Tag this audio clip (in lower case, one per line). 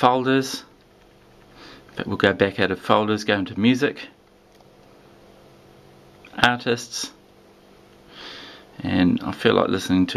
inside a small room
speech